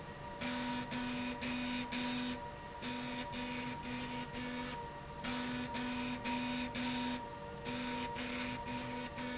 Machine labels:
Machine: slide rail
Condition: abnormal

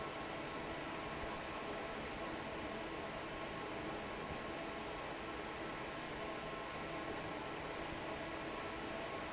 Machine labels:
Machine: fan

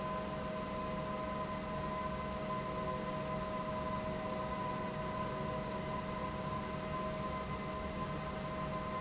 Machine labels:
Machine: pump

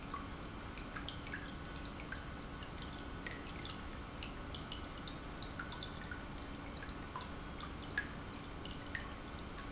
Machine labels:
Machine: pump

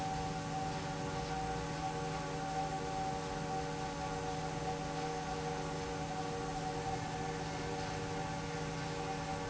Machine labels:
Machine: fan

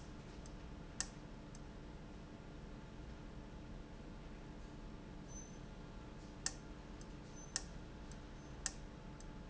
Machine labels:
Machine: valve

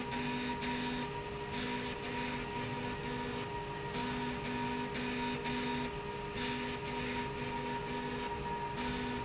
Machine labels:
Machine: slide rail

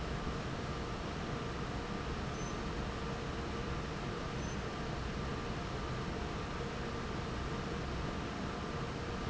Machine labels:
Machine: fan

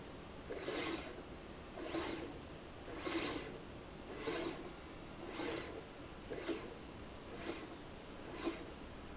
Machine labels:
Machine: slide rail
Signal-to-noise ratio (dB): 6 dB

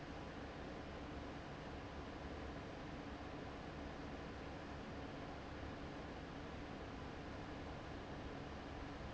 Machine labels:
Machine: fan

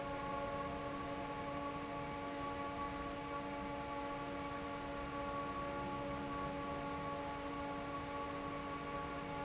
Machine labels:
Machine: fan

